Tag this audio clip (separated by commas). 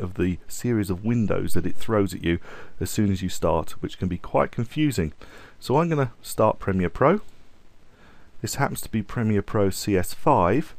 Speech